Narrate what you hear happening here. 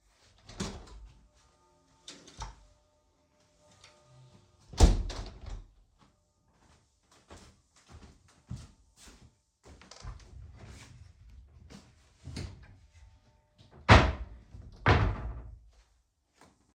I am at the window, and then I close it and walk towards my wardrobe. I open it and take out my socks and close it.